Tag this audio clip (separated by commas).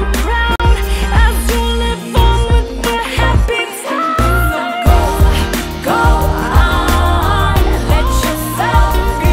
Singing, Music